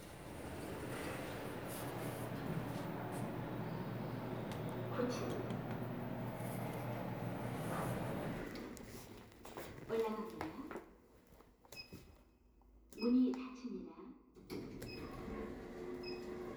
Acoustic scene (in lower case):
elevator